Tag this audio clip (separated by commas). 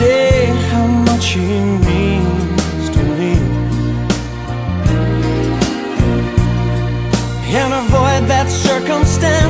Soul music